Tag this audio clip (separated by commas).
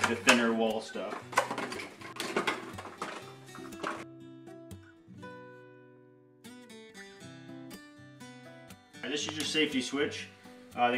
inside a small room, Speech, Music